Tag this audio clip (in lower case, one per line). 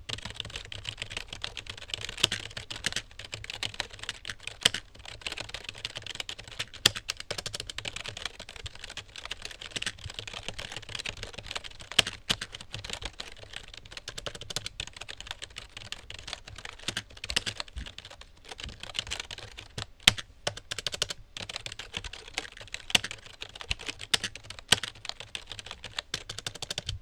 typing
home sounds